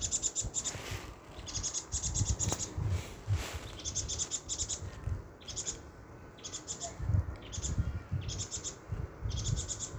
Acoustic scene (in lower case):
park